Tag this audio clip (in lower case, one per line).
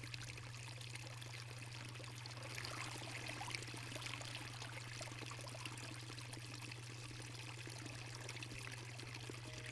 water